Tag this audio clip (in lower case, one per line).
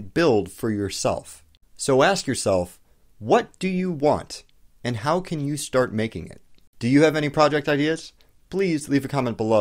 speech